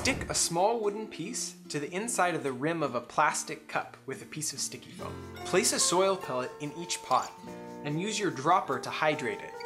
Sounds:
music, speech

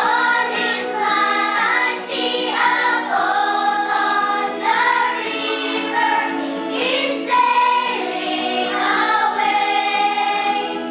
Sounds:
music, choir

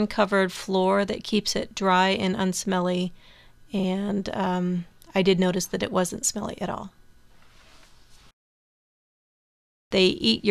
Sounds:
speech

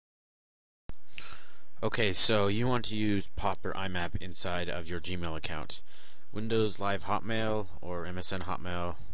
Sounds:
speech

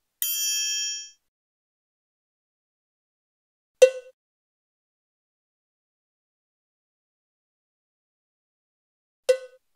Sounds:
cowbell

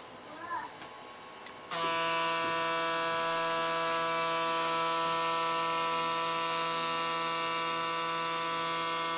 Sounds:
electric razor shaving

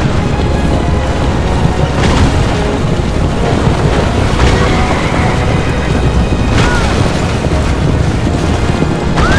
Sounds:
outside, rural or natural, music

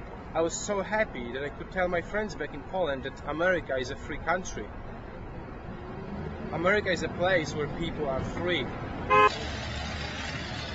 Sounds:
male speech, speech, monologue

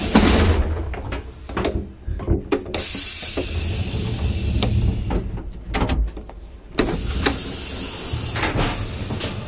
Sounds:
steam, hiss

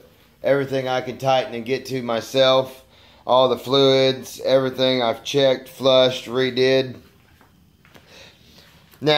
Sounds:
speech

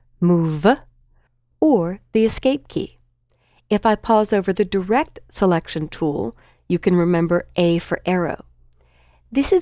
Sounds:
speech

